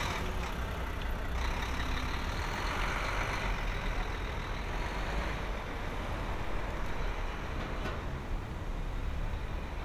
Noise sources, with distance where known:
large-sounding engine

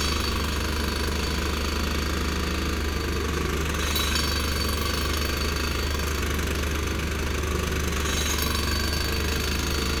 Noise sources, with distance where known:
unidentified impact machinery, near

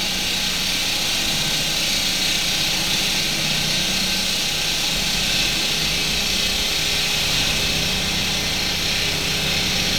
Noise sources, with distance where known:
unidentified powered saw, near

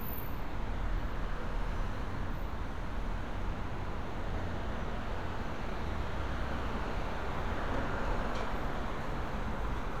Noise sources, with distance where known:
medium-sounding engine

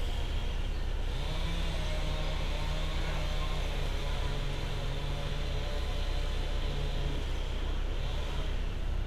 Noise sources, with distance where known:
engine of unclear size
unidentified powered saw, far

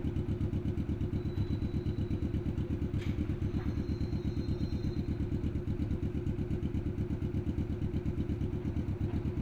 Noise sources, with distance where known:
engine of unclear size, near

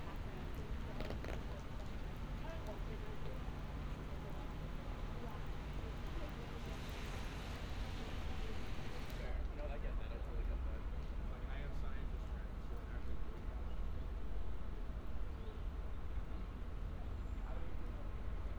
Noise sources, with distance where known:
person or small group talking

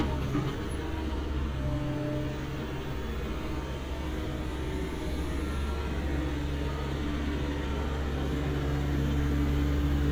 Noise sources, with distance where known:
large-sounding engine, near

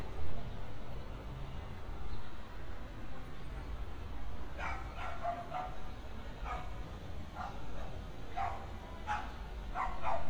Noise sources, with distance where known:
dog barking or whining, near

